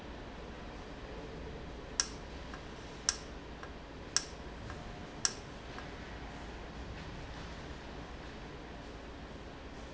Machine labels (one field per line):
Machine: valve